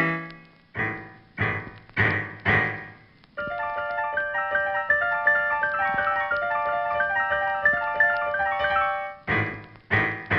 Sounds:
Music

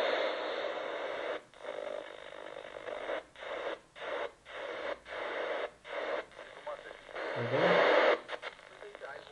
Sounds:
Speech, Radio

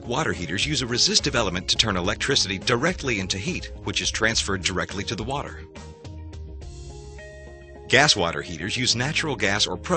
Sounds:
Speech, Music

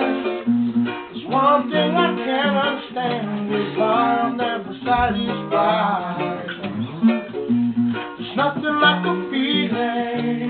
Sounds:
Music

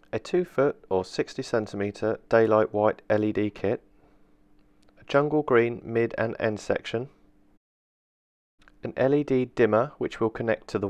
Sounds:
Speech

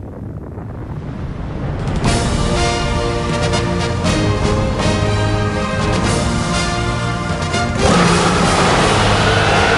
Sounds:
Music

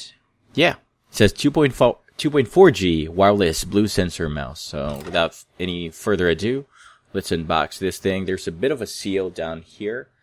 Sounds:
Speech

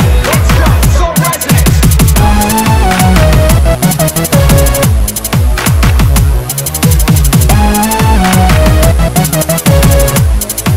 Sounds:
Dubstep, Music

